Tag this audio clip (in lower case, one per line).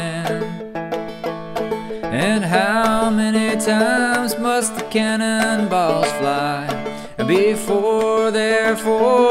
music